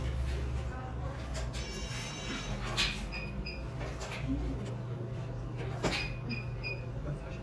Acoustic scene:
crowded indoor space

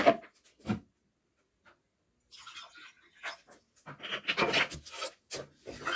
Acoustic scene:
kitchen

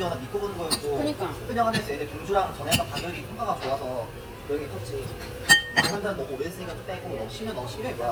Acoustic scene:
restaurant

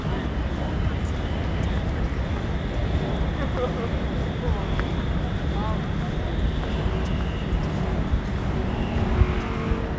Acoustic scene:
residential area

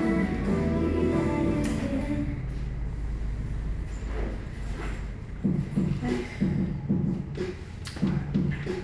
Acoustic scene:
cafe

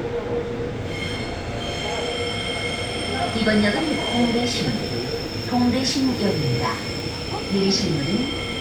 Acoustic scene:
subway train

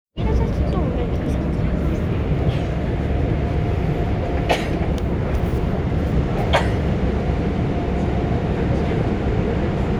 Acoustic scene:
subway train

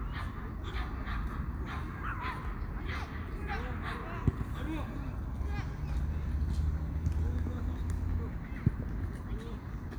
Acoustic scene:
park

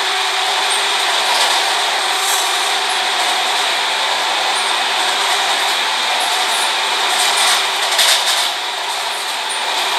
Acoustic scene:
subway train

